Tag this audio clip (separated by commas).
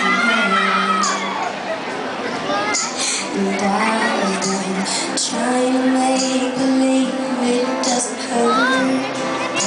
Speech, Music, inside a public space, Singing